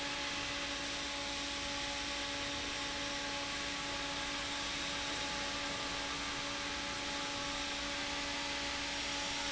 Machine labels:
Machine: fan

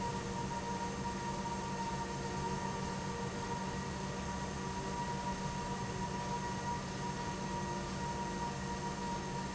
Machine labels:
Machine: pump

